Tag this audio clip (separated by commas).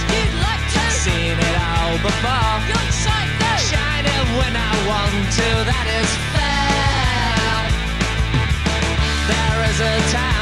Music